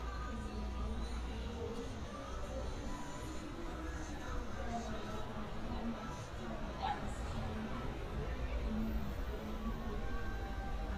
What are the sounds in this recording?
music from an unclear source